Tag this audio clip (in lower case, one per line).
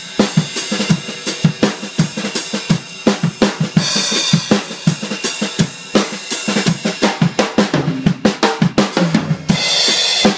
playing snare drum